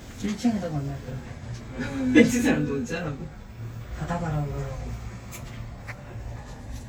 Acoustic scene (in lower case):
elevator